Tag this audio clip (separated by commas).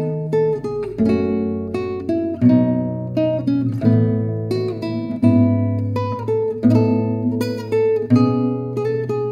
Acoustic guitar, Strum, Musical instrument, Music, Plucked string instrument, Guitar